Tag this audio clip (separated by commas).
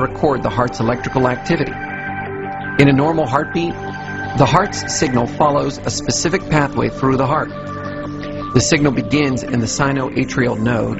Speech, Music